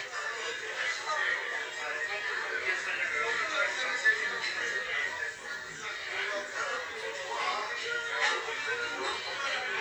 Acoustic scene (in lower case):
crowded indoor space